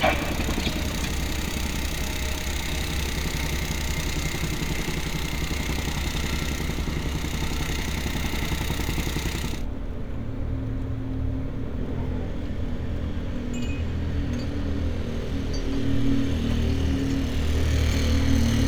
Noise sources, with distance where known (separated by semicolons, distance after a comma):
engine of unclear size